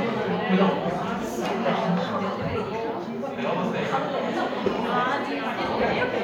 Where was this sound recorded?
in a crowded indoor space